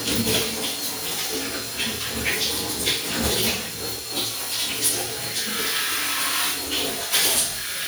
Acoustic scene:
restroom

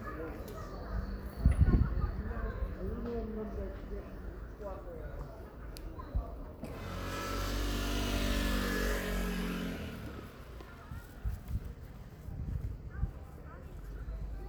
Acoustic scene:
residential area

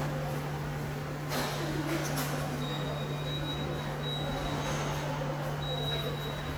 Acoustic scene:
subway station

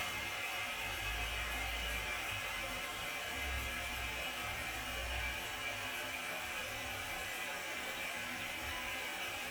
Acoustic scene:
restroom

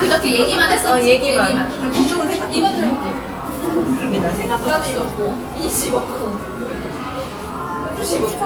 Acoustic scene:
cafe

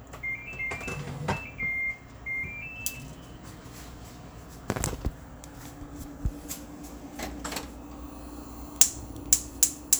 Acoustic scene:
kitchen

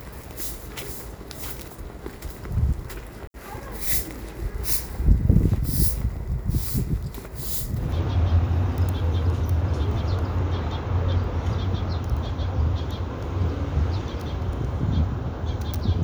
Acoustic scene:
residential area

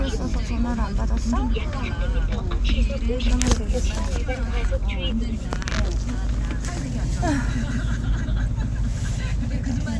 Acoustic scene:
car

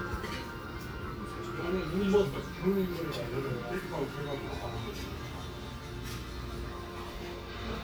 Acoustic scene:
restaurant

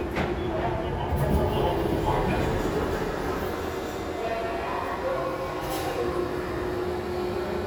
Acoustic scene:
subway station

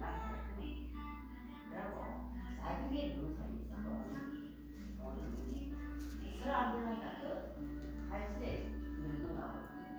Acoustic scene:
crowded indoor space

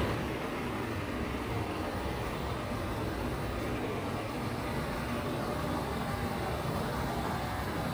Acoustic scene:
residential area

